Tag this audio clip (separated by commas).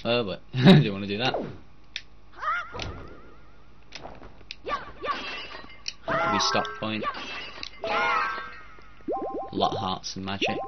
Speech